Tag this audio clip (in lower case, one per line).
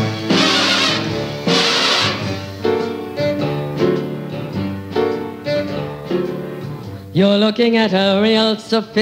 music
rock and roll